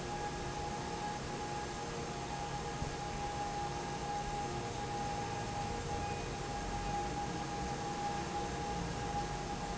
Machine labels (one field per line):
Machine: fan